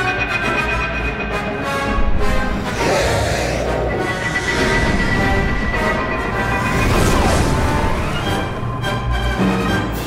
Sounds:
music
domestic animals
animal

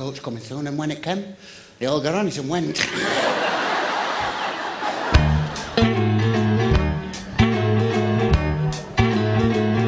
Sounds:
slide guitar
speech
blues
music

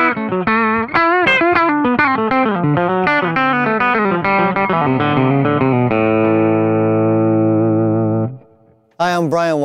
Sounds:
speech
music

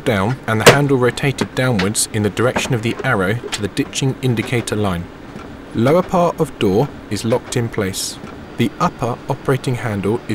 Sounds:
speech

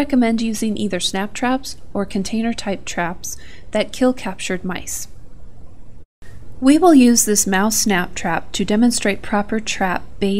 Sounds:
speech

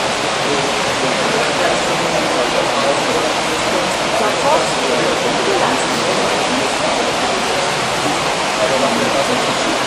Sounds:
speech

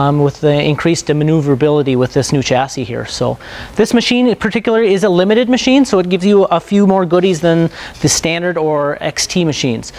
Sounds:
speech

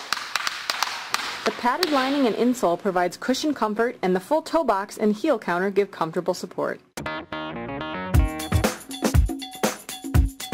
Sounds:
tap
music
speech

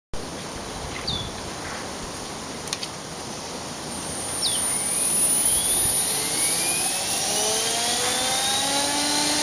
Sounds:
jet engine

